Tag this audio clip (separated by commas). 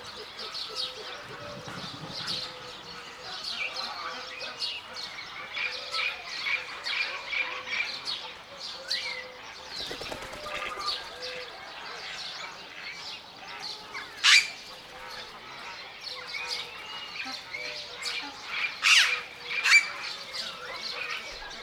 Animal, Fowl, livestock, Bird, Wild animals